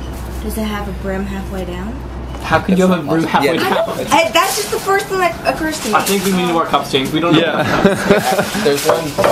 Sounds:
speech

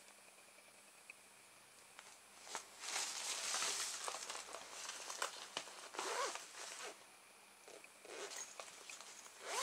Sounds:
crinkling

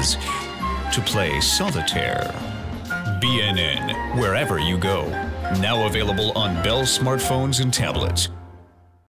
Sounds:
music
speech

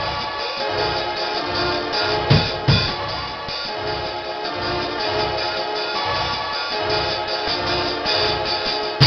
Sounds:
drum
bass drum
guitar
music
drum kit
musical instrument

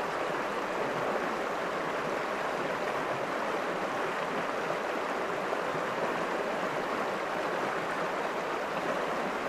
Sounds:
stream
stream burbling

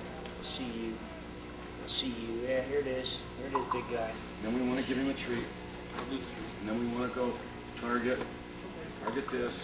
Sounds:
speech

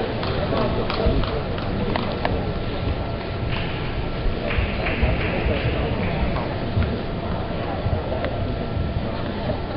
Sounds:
speech

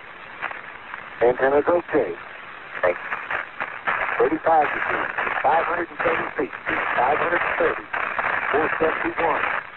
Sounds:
radio

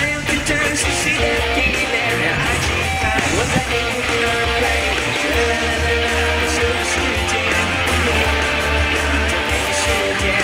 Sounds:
musical instrument
guitar
music

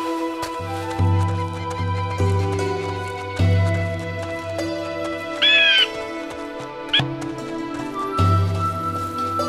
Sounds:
music

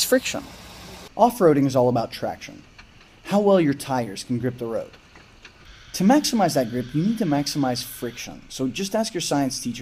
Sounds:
speech

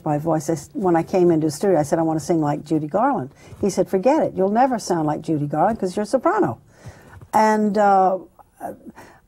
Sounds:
speech
female speech

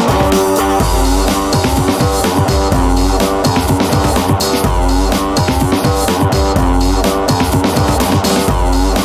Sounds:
music

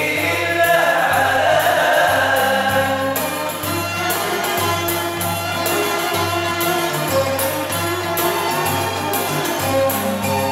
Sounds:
music

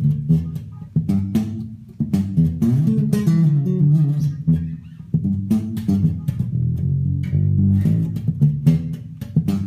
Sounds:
musical instrument
playing bass guitar
music
guitar
plucked string instrument
bass guitar

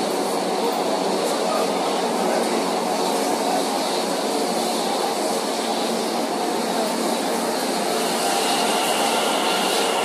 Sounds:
subway

